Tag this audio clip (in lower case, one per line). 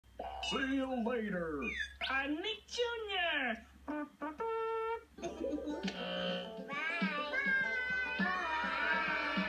inside a small room
speech
music